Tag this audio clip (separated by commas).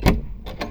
Vehicle, Car, Motor vehicle (road)